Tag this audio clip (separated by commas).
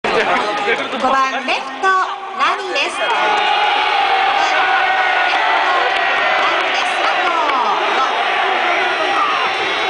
Crowd